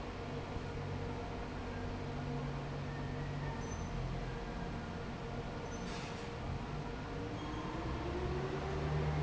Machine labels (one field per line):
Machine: fan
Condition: normal